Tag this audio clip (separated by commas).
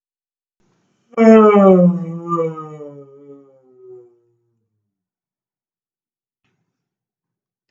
Human voice